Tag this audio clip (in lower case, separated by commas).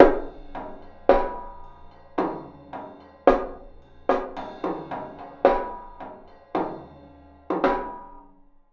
musical instrument, snare drum, drum, percussion, music